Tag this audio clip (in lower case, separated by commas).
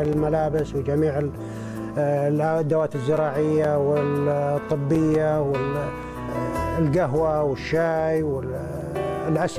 speech, music